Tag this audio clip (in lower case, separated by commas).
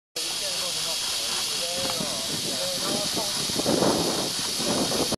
hiss, speech